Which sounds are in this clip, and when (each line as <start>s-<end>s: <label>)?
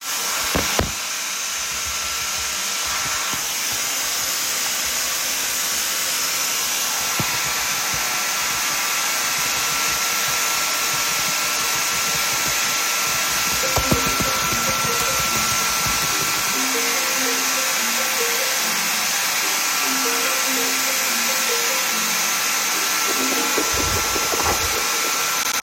0.1s-25.6s: vacuum cleaner
13.4s-25.5s: phone ringing